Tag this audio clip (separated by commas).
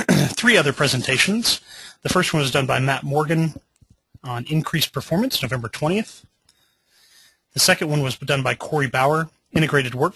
Speech